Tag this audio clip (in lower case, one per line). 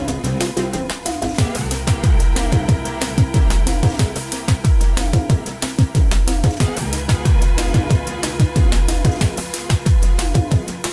music